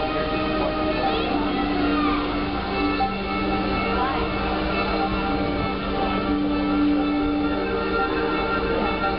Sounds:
Music

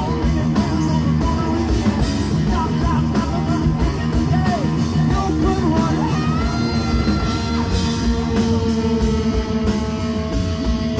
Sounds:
Music, Vocal music, Singing, Heavy metal

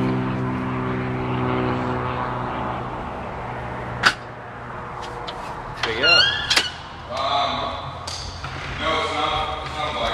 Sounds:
Speech

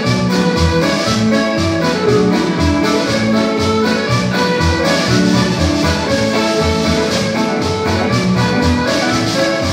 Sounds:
Music

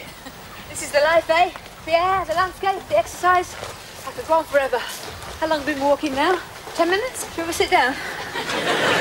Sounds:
Speech

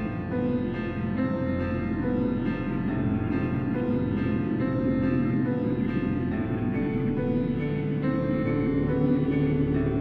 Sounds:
Music

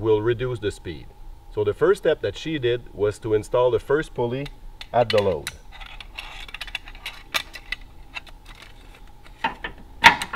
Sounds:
Speech

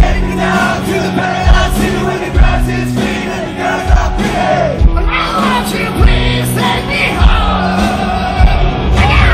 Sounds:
Rock and roll, Music

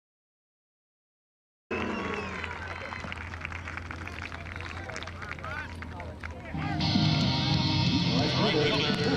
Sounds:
Music, Speech

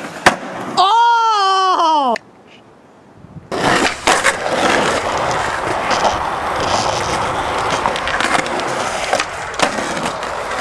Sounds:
skateboarding, Skateboard

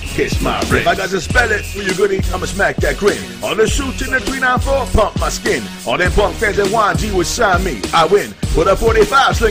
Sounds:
Music, Rapping

